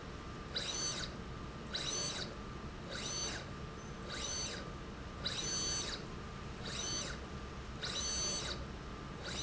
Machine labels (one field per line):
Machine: slide rail